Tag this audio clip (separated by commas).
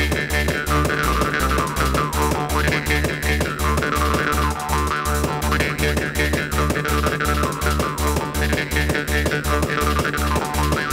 Music, Techno, Electronic music